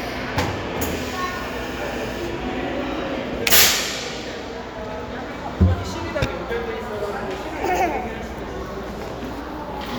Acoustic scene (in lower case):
crowded indoor space